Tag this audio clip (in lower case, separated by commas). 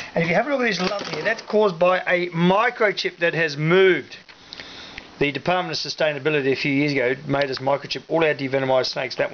speech, inside a small room